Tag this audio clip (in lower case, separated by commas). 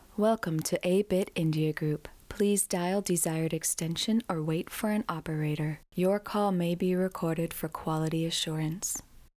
speech, female speech, human voice